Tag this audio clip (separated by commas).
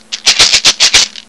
Rattle (instrument), Percussion, Musical instrument, Music